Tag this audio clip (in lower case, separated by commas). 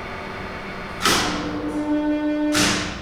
mechanisms